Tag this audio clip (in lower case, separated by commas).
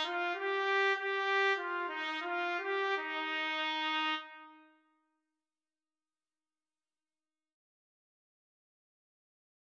music, trumpet